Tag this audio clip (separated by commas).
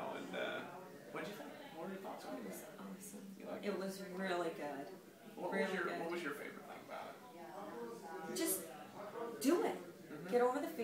Speech